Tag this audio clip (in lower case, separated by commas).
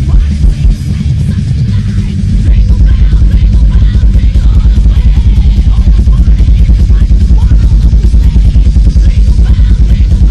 jingle (music), music